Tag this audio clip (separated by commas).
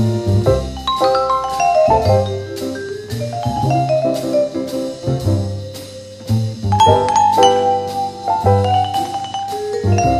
Glockenspiel, xylophone, Mallet percussion